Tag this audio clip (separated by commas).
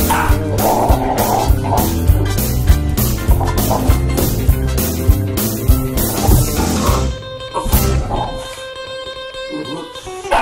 Music, Yip, Bow-wow